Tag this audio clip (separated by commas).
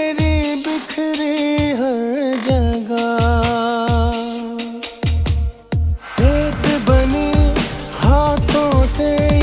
Music of Bollywood